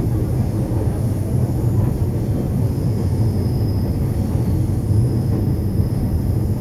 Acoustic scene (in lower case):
subway train